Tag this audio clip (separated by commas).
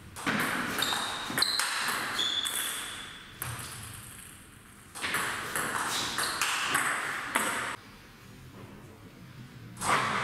playing table tennis